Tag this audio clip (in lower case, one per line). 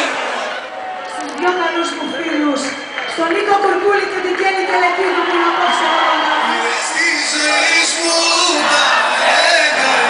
speech